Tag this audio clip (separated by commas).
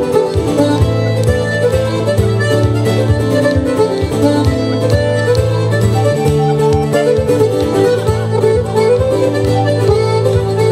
Musical instrument, Bowed string instrument, Traditional music, Guitar, Bluegrass, Country, Music